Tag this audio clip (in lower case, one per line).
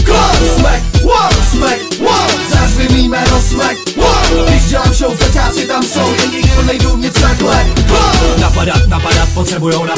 music